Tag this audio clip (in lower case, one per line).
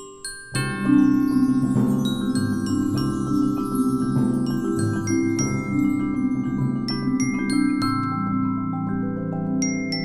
mallet percussion
glockenspiel
xylophone